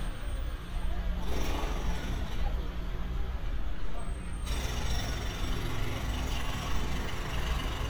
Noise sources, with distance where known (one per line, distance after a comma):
jackhammer, near